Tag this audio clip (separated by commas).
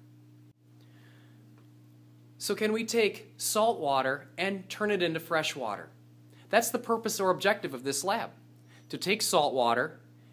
Speech